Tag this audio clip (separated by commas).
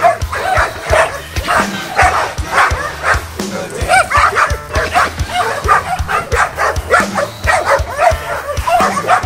dog baying